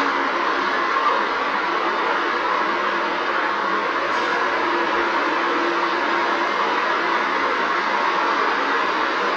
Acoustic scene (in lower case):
street